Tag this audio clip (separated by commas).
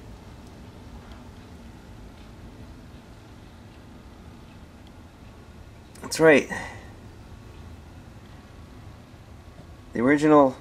Speech